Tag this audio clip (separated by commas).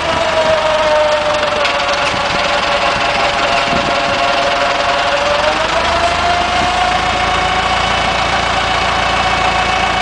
Vehicle